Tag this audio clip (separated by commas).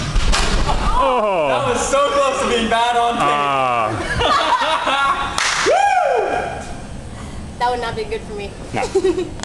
Speech